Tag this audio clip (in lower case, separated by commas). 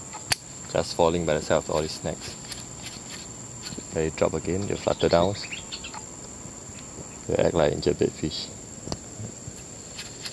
outside, rural or natural, bird song, speech